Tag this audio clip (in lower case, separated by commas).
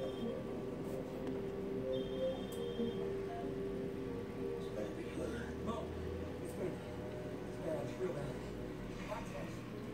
speech, music